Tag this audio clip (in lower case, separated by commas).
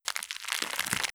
crackle